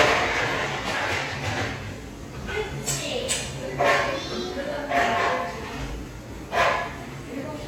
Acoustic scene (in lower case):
cafe